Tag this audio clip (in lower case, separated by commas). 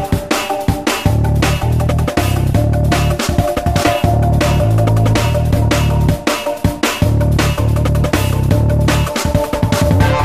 sampler, music